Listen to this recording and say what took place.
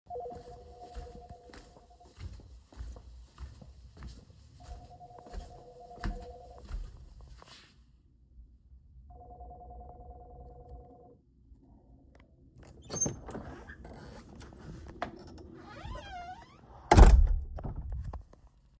My friend called me and I went to to open the door for him, as I knew he will be here once he calls.